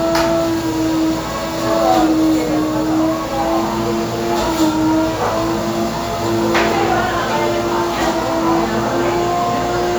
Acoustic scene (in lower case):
cafe